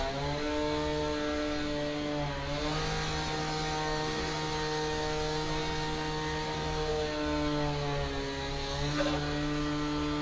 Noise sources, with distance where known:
unidentified powered saw, near

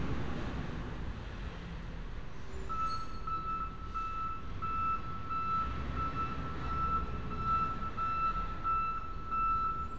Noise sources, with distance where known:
reverse beeper, near

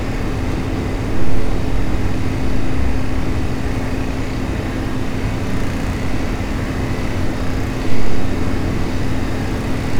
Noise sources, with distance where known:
small-sounding engine

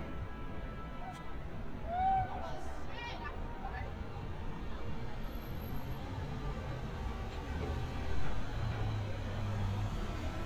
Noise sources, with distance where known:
engine of unclear size; person or small group shouting, far

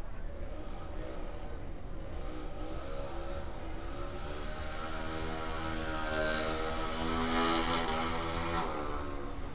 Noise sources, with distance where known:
small-sounding engine, near

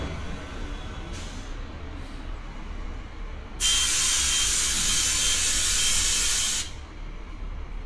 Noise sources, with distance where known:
large-sounding engine, near

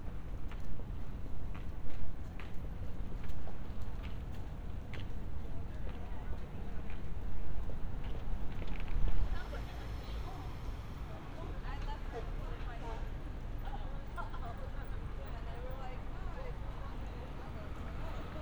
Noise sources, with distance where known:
person or small group talking

